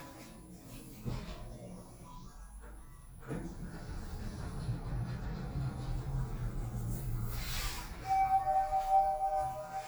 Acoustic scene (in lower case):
elevator